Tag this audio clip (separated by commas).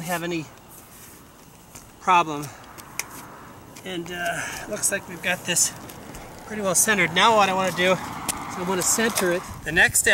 Speech